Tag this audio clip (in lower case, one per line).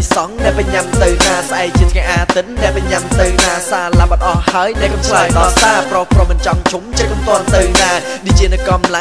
music